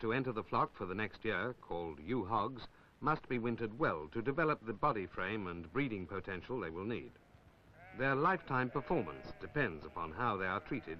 An adult male is speaking and animals are bleating